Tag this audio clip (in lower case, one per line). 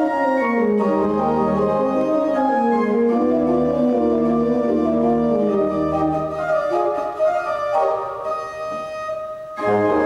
keyboard (musical)
piano
organ
classical music
musical instrument
music